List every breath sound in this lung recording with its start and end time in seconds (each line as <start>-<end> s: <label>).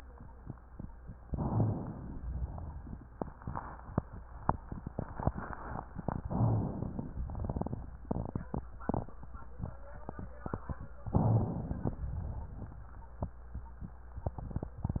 1.26-2.22 s: inhalation
2.18-4.21 s: exhalation
2.18-4.21 s: crackles
6.25-7.26 s: inhalation
6.25-7.26 s: crackles
11.11-12.02 s: inhalation
12.00-13.29 s: exhalation